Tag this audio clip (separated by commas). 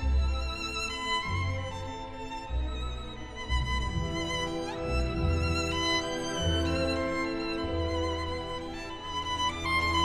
Musical instrument, Violin, Music